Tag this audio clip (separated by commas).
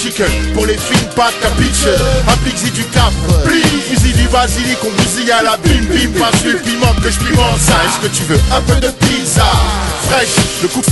Music